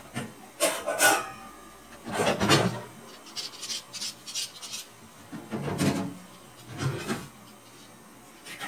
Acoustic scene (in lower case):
kitchen